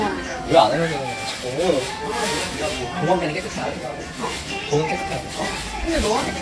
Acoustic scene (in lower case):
restaurant